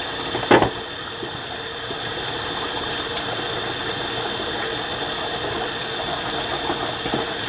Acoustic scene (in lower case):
kitchen